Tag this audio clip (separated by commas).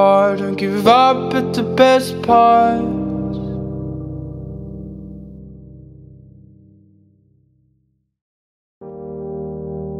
Music, Singing